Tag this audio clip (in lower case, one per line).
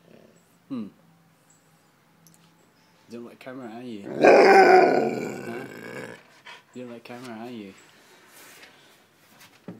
speech